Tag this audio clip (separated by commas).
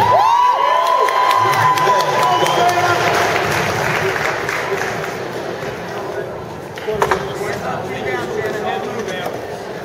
Speech